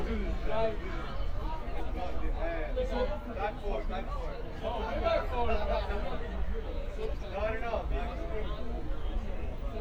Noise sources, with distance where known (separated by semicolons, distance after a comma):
unidentified human voice, near